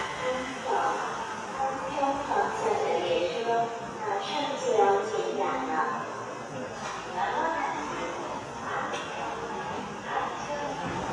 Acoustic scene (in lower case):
subway station